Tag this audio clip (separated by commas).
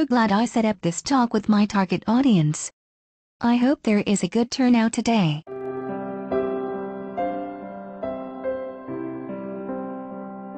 Music, Speech